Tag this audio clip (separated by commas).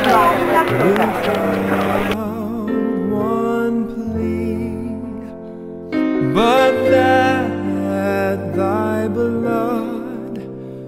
Music, Speech